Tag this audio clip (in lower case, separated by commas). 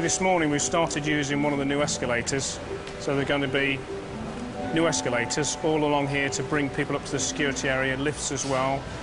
speech, music